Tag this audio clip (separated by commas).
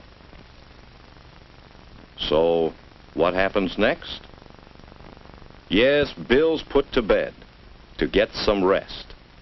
Speech